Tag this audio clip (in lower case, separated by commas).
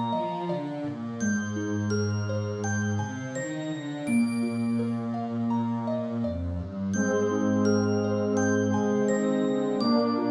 background music, music